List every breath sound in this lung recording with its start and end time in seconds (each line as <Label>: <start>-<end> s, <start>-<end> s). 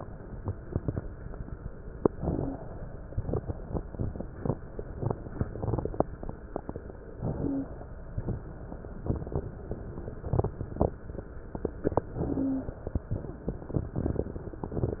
Inhalation: 2.14-3.24 s, 7.20-8.12 s, 12.10-13.10 s
Wheeze: 2.14-2.62 s, 7.36-7.74 s, 12.14-12.72 s